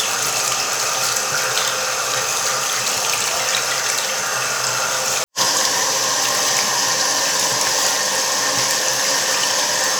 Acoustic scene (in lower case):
restroom